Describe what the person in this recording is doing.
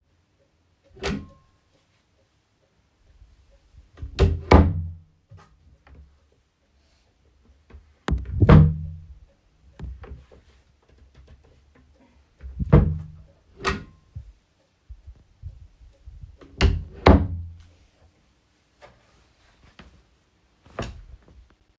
In a bedroom with the phone placed statically, a wardrobe or drawer is opened and closed in a clear cycle. After a short pause, a second open-close action happens, as if continuing to search and then shutting it again.